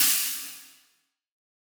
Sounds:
percussion
cymbal
hi-hat
musical instrument
music

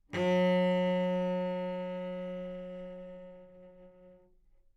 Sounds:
bowed string instrument
music
musical instrument

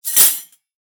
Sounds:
cutlery
domestic sounds

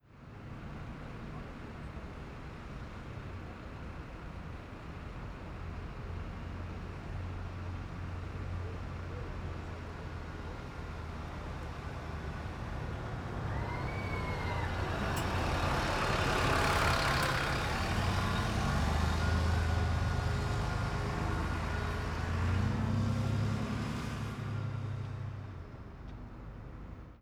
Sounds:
motor vehicle (road)
vehicle
bus

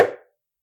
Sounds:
tap

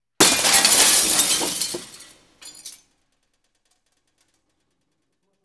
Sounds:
shatter
glass

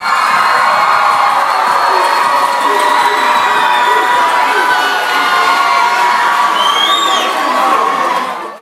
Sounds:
screaming
cheering
human voice
crowd
human group actions

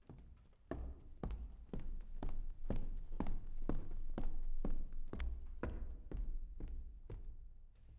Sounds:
walk

